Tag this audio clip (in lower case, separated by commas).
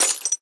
shatter, glass